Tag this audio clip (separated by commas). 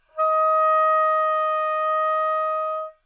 Musical instrument, Music, Wind instrument